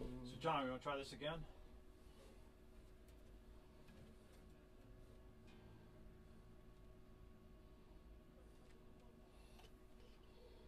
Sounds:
speech

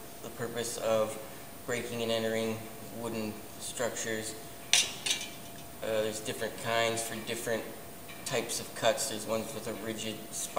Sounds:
tools, speech

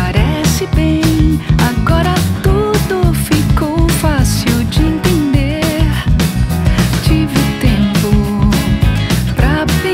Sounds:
music

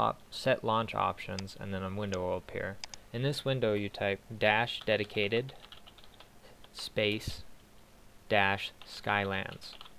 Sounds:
speech

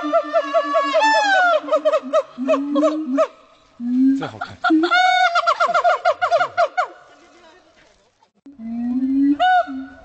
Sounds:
gibbon howling

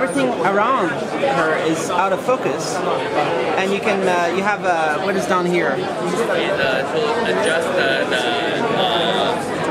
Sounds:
speech

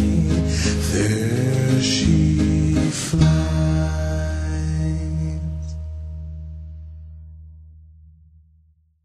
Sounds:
inside a small room, music, silence, singing

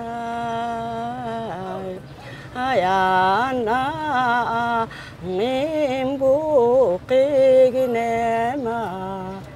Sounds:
outside, urban or man-made

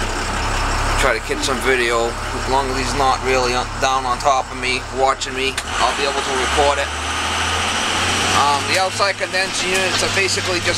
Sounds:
speech, vehicle, truck

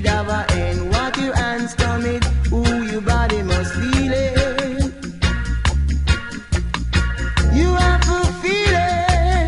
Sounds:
music, reggae

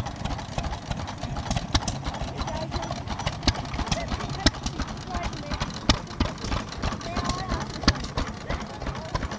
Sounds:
medium engine (mid frequency), engine, idling, speech

